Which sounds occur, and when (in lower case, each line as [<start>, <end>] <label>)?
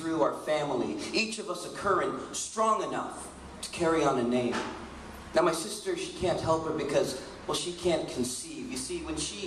[0.00, 0.92] male speech
[0.00, 9.45] background noise
[1.07, 2.04] male speech
[2.29, 3.29] male speech
[3.61, 4.69] male speech
[4.49, 4.66] generic impact sounds
[5.34, 7.14] male speech
[6.17, 6.52] generic impact sounds
[7.48, 8.56] male speech
[8.70, 9.43] male speech